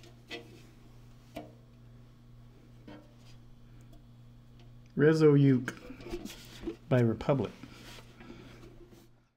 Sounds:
inside a small room, Speech

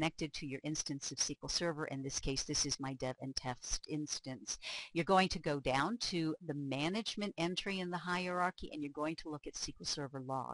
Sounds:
Speech

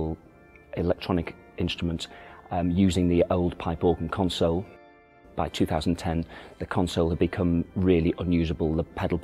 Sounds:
Musical instrument, Keyboard (musical), Music, Speech

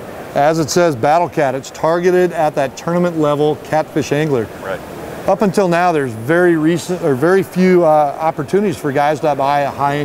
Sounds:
Speech

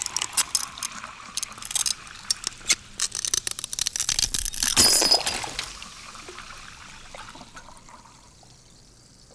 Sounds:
Pour, Glass, Water

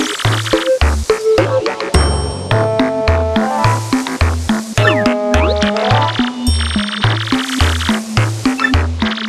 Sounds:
Music

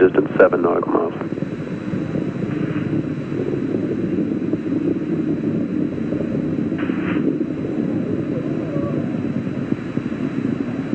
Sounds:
Speech

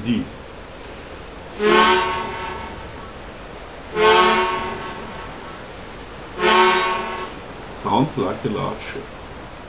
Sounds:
Musical instrument, Harmonica, Music, Speech

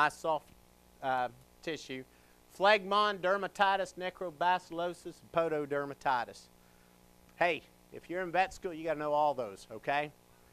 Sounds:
Speech

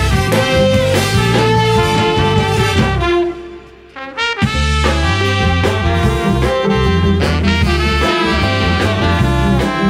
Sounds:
Brass instrument, Trombone, Trumpet

